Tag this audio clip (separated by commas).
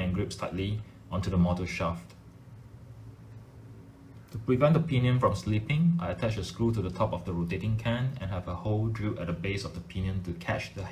Speech